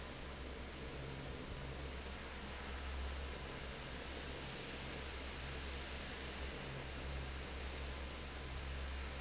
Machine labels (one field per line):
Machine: fan